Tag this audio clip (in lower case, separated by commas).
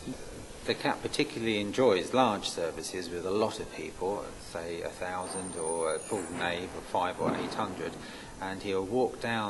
speech, hiss